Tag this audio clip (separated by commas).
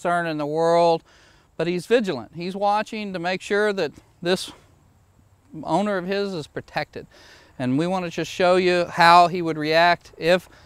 Speech